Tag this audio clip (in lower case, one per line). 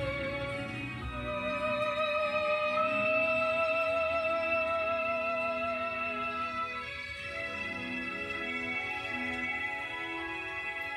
playing theremin